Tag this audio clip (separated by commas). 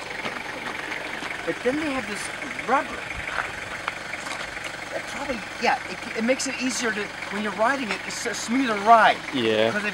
Speech